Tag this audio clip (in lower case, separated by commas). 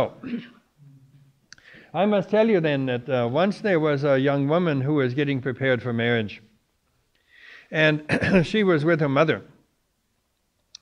speech